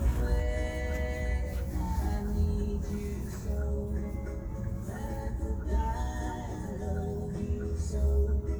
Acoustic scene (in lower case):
car